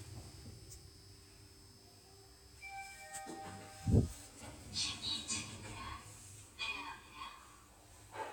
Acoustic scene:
elevator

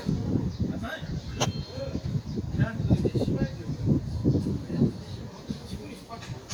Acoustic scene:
park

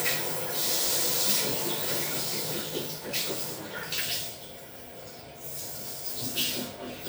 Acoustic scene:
restroom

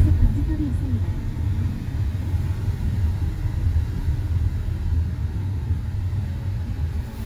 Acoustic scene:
car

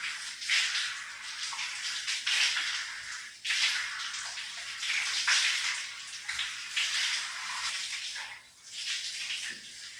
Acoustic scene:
restroom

